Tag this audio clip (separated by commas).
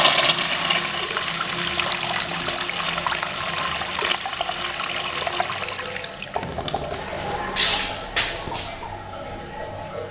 Toilet flush, toilet flushing